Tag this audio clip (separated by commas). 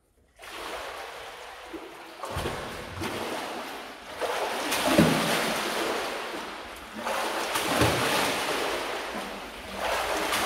swimming